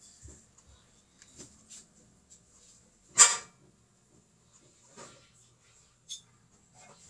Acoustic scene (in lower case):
kitchen